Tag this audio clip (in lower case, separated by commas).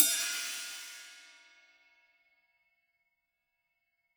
musical instrument, hi-hat, music, cymbal, percussion